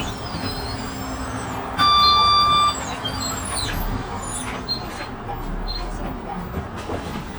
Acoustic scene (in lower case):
bus